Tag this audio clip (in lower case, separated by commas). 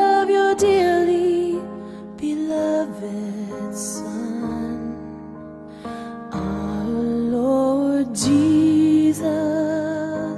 music